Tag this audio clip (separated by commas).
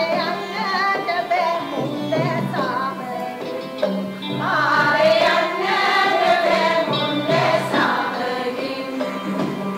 Music, Traditional music